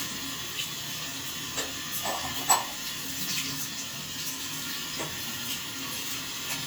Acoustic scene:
restroom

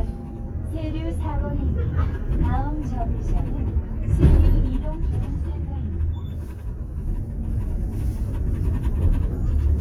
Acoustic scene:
bus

